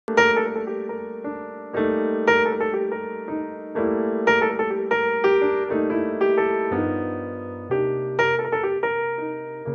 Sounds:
Music

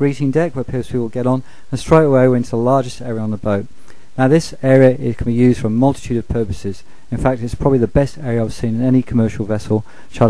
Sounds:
Speech

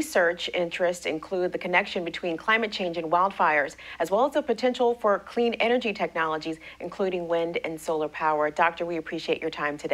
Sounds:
Speech

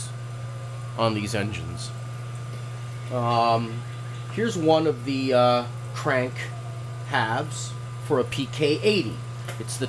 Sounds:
Speech, Heavy engine (low frequency)

